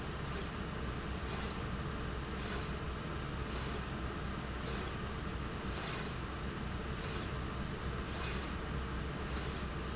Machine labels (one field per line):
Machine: slide rail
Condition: normal